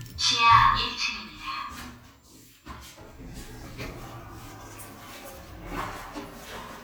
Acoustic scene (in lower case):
elevator